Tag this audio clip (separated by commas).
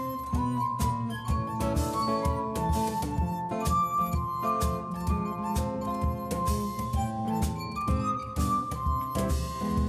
Musical instrument, Plucked string instrument, Music, Guitar